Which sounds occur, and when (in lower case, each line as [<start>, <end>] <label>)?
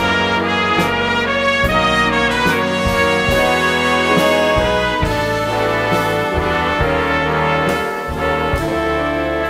[0.00, 9.45] music